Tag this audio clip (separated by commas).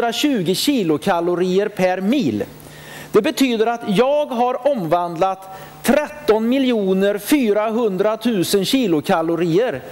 Speech